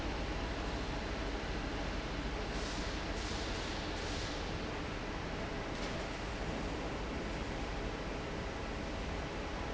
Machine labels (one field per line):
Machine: fan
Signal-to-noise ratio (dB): -6 dB